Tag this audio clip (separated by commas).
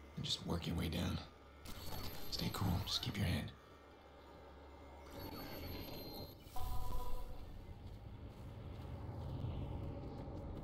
Speech